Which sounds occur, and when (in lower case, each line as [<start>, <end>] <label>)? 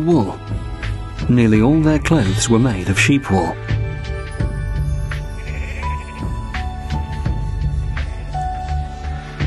[0.00, 0.37] man speaking
[0.00, 9.45] music
[1.23, 3.49] man speaking
[2.17, 2.89] bleat
[5.34, 6.18] bleat